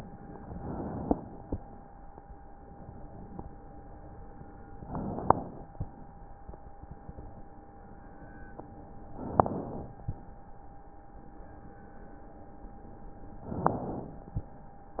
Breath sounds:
0.30-1.34 s: inhalation
3.96-4.78 s: stridor
4.75-5.72 s: inhalation
7.75-8.64 s: stridor
9.10-10.02 s: inhalation
11.31-12.38 s: stridor
13.38-14.30 s: inhalation

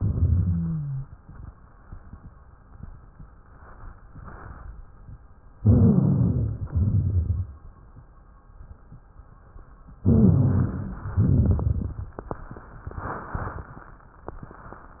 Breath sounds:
0.00-1.06 s: exhalation
0.00-1.06 s: rhonchi
5.60-6.66 s: inhalation
5.60-6.66 s: rhonchi
6.70-7.63 s: exhalation
6.70-7.63 s: rhonchi
10.07-11.14 s: inhalation
10.07-11.14 s: rhonchi
11.16-12.22 s: exhalation
11.16-12.22 s: crackles

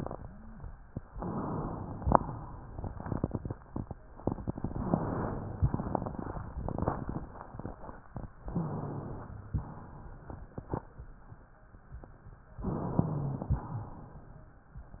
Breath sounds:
1.09-1.89 s: inhalation
1.89-2.69 s: exhalation
8.43-9.33 s: inhalation
8.52-9.29 s: wheeze
9.53-11.07 s: exhalation
12.63-13.55 s: inhalation
12.97-13.62 s: wheeze

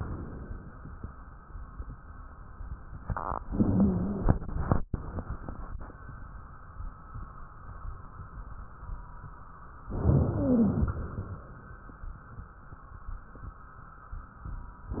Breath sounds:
3.49-4.35 s: wheeze
3.49-4.80 s: inhalation
9.94-11.37 s: inhalation
10.09-10.99 s: wheeze

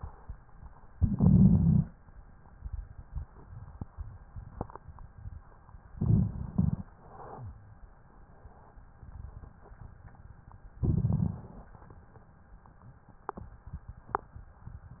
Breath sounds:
0.92-1.88 s: inhalation
0.92-1.88 s: rhonchi
5.97-6.88 s: inhalation
5.97-6.88 s: rhonchi
6.95-7.60 s: exhalation
10.83-11.75 s: inhalation
10.83-11.75 s: rhonchi

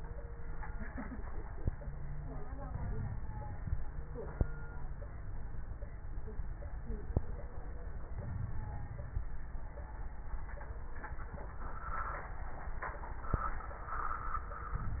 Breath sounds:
2.67-3.68 s: inhalation
2.67-3.68 s: crackles
8.18-9.27 s: inhalation
8.18-9.27 s: crackles

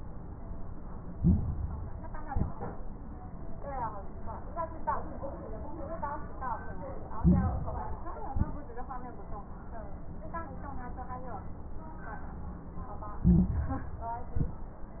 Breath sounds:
1.10-2.14 s: inhalation
1.10-2.14 s: crackles
2.20-2.87 s: exhalation
2.20-2.87 s: crackles
7.14-8.19 s: inhalation
7.14-8.19 s: crackles
8.27-8.93 s: exhalation
8.27-8.93 s: crackles
13.21-14.25 s: inhalation
13.21-14.25 s: crackles
14.27-14.74 s: exhalation
14.27-14.74 s: crackles

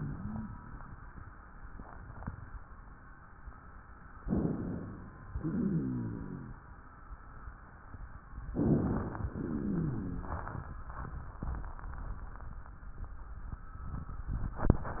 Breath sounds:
4.23-5.28 s: inhalation
5.31-6.58 s: exhalation
5.31-6.58 s: rhonchi
8.52-9.30 s: inhalation
9.30-10.49 s: exhalation
9.30-10.49 s: rhonchi

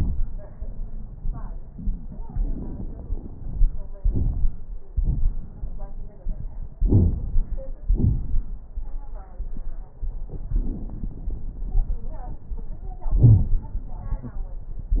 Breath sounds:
2.22-3.99 s: inhalation
2.22-3.99 s: crackles
4.02-4.82 s: exhalation
4.02-4.82 s: crackles
6.86-7.84 s: inhalation
6.86-7.84 s: crackles
7.86-8.63 s: exhalation
7.86-8.63 s: crackles
10.55-13.11 s: inhalation
10.55-13.11 s: crackles
13.13-13.89 s: exhalation
13.13-13.89 s: crackles

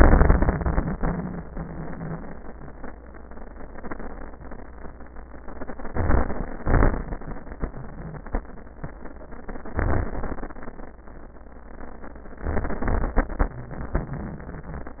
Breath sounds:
5.84-6.66 s: inhalation
5.84-6.66 s: crackles
6.64-7.46 s: exhalation
6.67-7.50 s: crackles
9.74-10.85 s: inhalation
9.74-10.85 s: crackles
12.43-13.19 s: inhalation
13.19-15.00 s: exhalation
13.19-15.00 s: wheeze
13.19-15.00 s: crackles

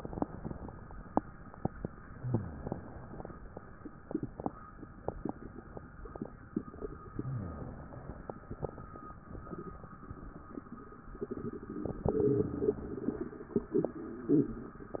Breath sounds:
2.11-3.37 s: exhalation
7.14-8.40 s: exhalation
12.02-13.36 s: exhalation

